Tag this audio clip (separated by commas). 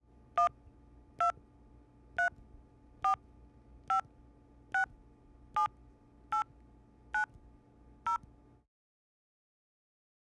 Telephone, Alarm